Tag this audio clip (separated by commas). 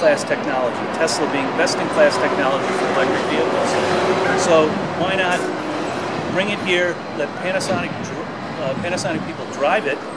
Vehicle, Speech